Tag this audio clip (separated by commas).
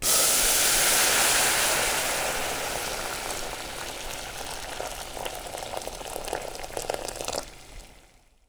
Liquid, Boiling